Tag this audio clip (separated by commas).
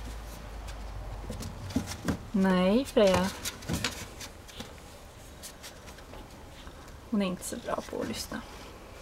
Speech